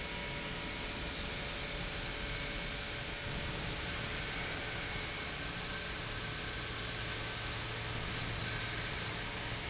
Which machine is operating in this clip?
pump